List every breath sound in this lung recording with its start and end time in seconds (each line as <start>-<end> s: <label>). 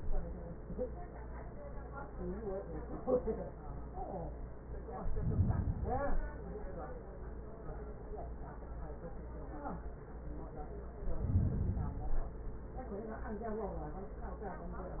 4.89-6.39 s: inhalation
10.92-12.42 s: inhalation